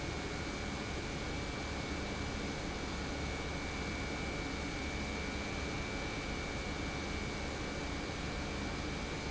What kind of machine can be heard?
pump